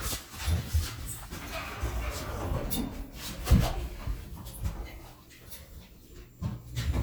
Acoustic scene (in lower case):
elevator